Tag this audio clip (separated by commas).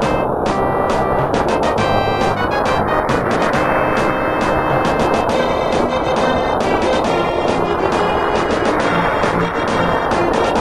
Music